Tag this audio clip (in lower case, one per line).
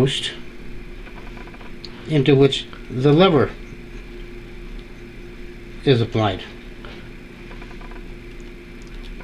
speech
inside a small room